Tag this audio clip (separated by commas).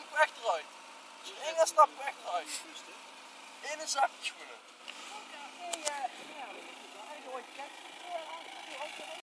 Speech, Car, Vehicle